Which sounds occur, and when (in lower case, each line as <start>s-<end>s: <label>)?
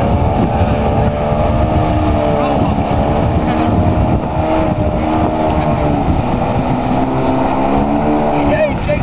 0.0s-9.0s: speedboat
0.0s-9.0s: water
0.0s-9.0s: wind noise (microphone)
0.5s-0.9s: speech
2.4s-2.8s: male speech
3.4s-3.7s: male speech
5.6s-5.8s: speech
8.4s-9.0s: male speech